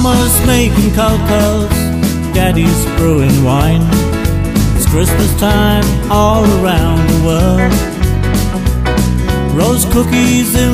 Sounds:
country
music
exciting music
christmas music

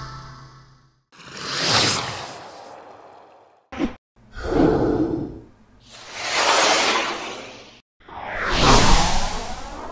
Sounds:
swoosh

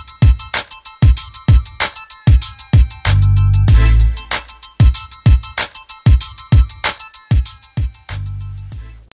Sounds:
music

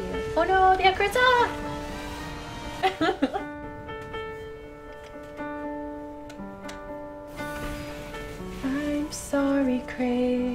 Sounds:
music
female singing
speech

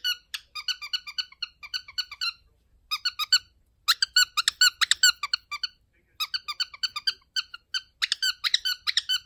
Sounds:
bird squawking

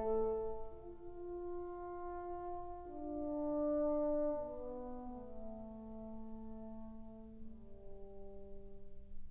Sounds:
brass instrument
music

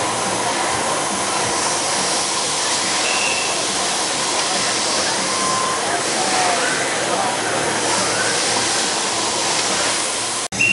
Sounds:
speech

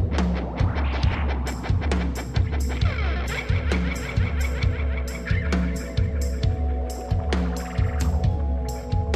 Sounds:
music

